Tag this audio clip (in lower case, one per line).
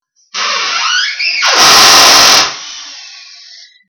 tools
drill
power tool